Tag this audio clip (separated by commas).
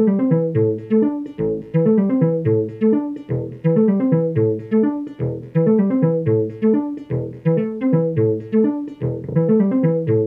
Sampler, Music